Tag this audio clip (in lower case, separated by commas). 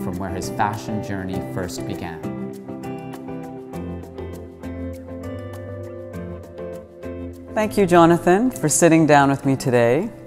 speech, music